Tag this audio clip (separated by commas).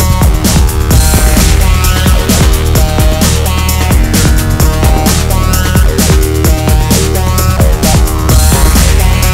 Music